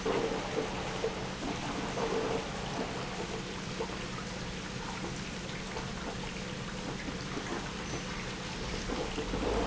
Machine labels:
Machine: pump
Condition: abnormal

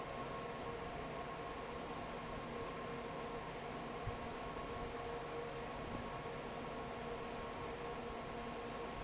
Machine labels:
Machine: fan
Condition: normal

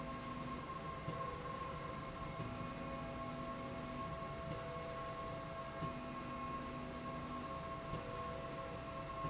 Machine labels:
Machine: slide rail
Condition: normal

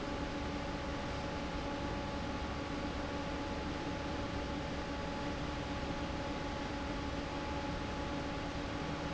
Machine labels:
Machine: fan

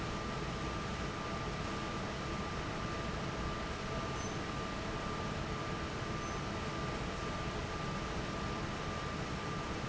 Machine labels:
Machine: fan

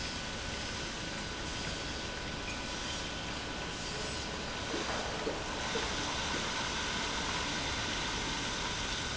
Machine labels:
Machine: pump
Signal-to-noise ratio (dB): -6 dB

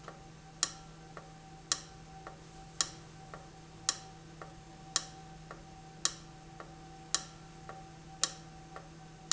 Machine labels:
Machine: valve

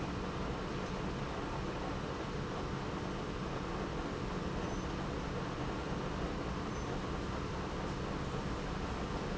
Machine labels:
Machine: pump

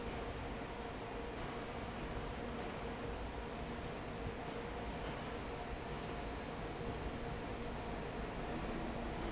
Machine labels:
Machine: fan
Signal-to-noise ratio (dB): 0 dB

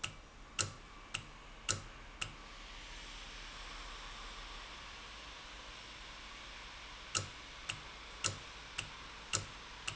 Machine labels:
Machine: valve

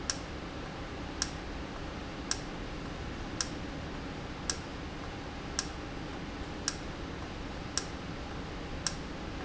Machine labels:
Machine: valve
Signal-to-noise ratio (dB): -6 dB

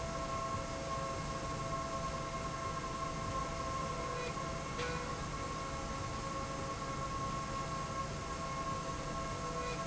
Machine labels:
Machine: slide rail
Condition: normal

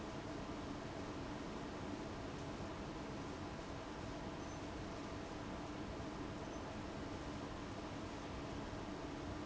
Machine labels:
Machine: fan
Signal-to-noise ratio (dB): 6 dB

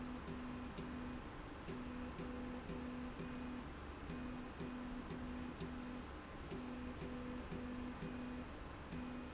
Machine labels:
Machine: slide rail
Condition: normal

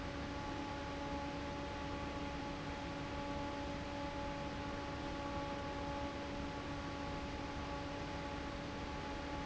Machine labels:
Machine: fan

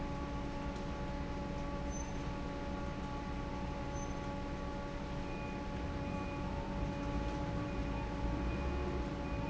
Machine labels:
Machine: fan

